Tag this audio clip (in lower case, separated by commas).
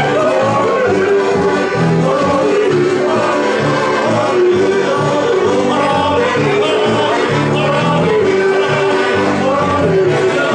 music, rhythm and blues, folk music